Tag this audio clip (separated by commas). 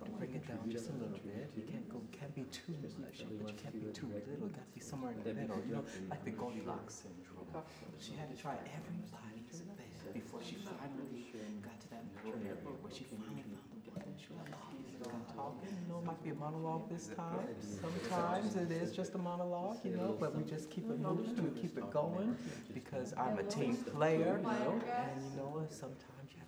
Conversation, Human group actions, Chatter, Human voice, Speech